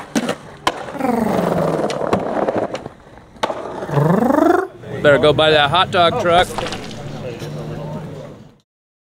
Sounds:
speech

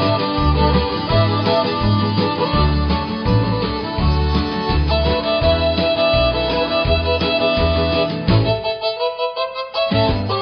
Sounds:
music
musical instrument

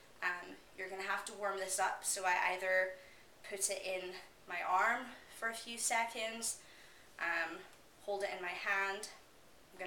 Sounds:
speech

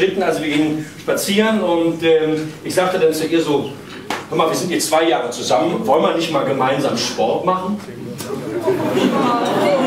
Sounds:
speech

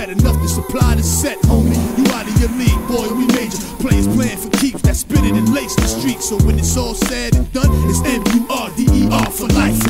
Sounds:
music

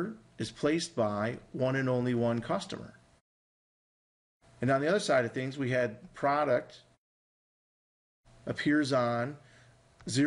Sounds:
speech

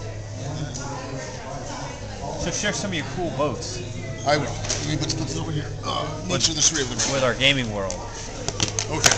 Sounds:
speech

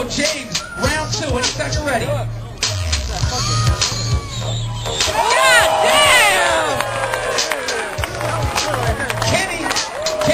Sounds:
speech
music

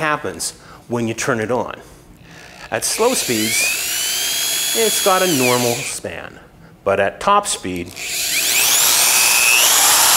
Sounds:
speech

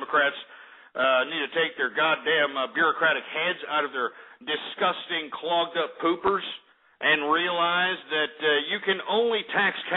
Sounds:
speech

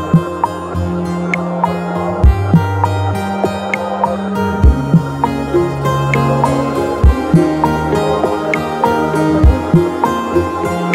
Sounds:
fiddle
bowed string instrument

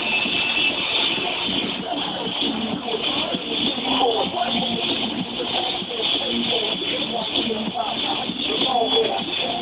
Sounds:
music

